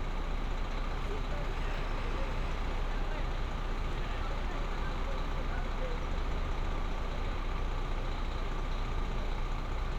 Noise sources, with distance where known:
person or small group talking, far

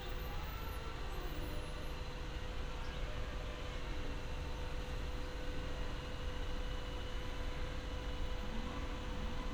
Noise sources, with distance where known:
background noise

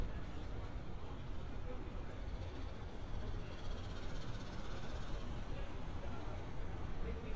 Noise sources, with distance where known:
unidentified impact machinery
person or small group talking, far

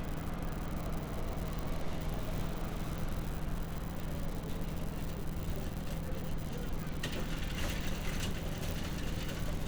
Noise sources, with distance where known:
engine of unclear size

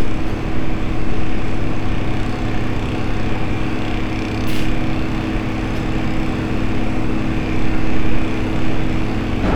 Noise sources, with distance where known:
rock drill, near

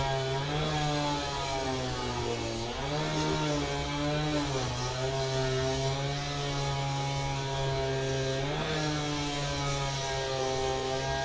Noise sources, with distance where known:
unidentified powered saw, near

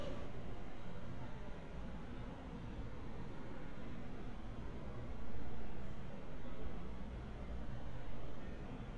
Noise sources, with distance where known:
person or small group talking, far

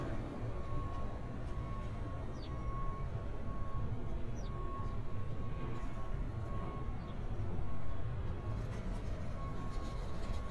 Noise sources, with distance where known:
reverse beeper, far

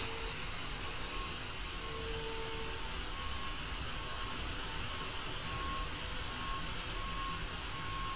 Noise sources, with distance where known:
unidentified powered saw, far

